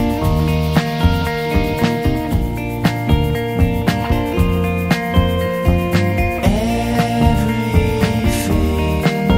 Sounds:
Funny music, Music

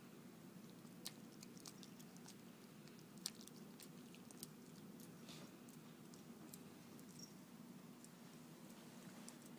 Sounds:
Domestic animals, Dog

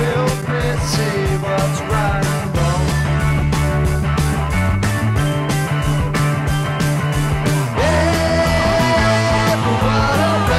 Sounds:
Music

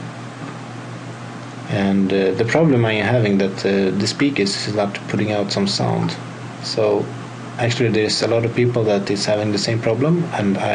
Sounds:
Speech

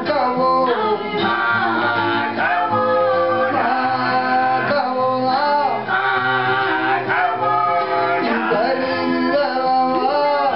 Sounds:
Plucked string instrument, Acoustic guitar, Musical instrument, Guitar, Music

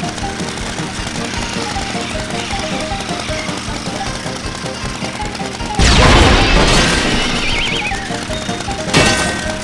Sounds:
Music

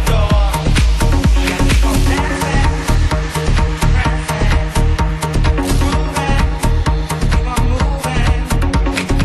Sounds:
Music, Soul music

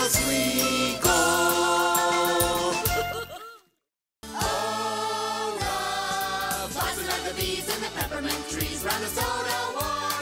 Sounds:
Jingle (music)

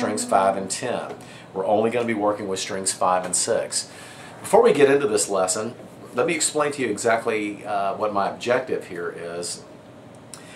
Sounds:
Speech

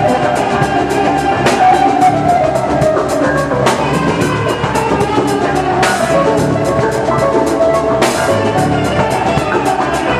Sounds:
Electric guitar, Plucked string instrument, Musical instrument, Music, Guitar

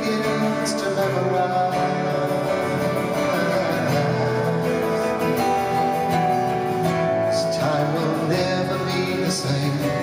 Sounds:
Music

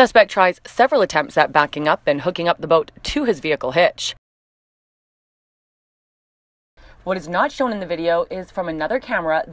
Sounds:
Speech

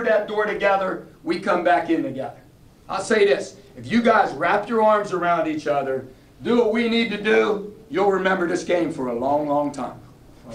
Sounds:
monologue, Speech, Male speech

